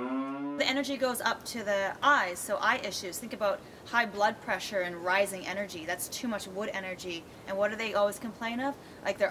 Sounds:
speech

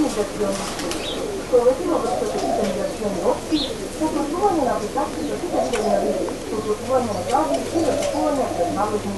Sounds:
bird
speech
pigeon

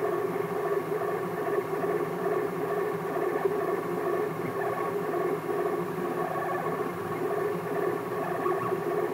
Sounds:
printer

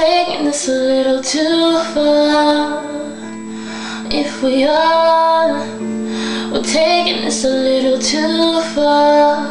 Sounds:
music

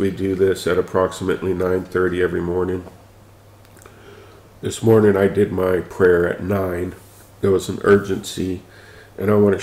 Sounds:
speech

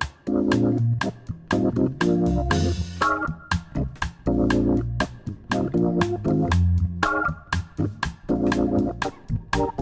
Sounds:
music

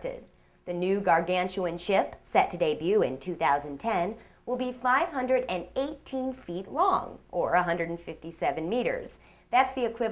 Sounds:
speech

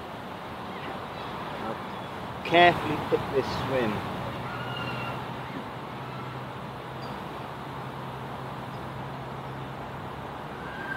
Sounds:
speech

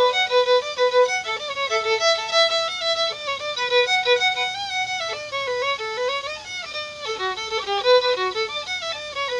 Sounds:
musical instrument
fiddle
music

